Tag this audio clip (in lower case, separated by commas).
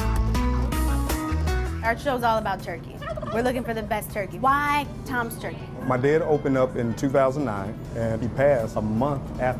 speech, music